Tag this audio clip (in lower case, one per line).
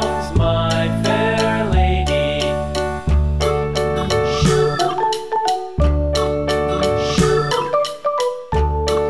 music
speech